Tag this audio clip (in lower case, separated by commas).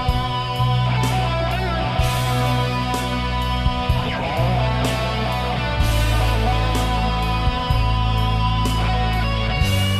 guitar, musical instrument, plucked string instrument, music, electric guitar